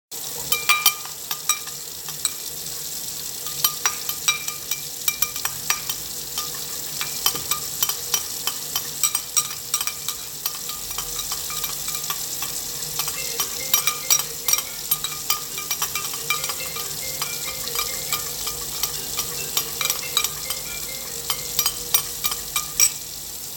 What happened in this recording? The device is placed stationary during the recording. Dish handling sounds and running water are heard first. A phone starts ringing afterward, and all three sound events continue in parallel until the end of the scene.